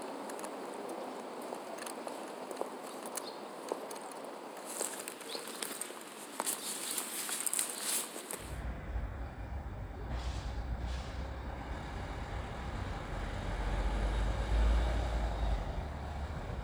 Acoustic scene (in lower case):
residential area